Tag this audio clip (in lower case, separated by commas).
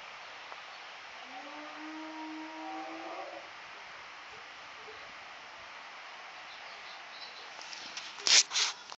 howl, animal